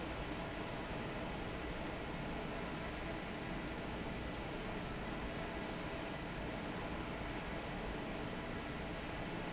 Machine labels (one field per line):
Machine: fan